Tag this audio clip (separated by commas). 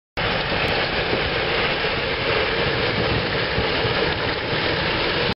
Vehicle, Truck